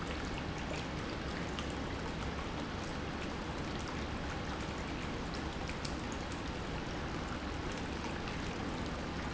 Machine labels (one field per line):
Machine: pump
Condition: normal